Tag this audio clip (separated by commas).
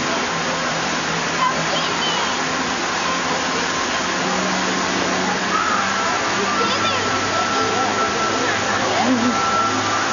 Speech, Waterfall, Music